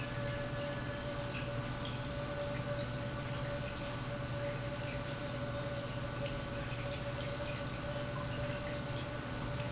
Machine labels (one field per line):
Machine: pump